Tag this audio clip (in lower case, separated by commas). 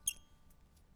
squeak